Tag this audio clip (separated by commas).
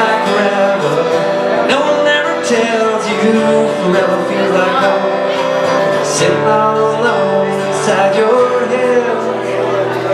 Music